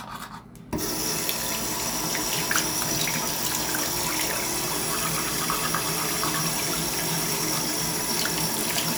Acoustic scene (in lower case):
restroom